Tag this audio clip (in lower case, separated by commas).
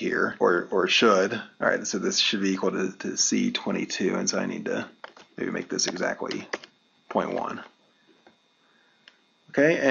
speech